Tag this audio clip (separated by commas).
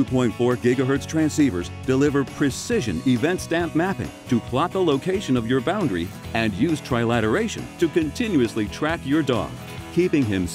Speech, Music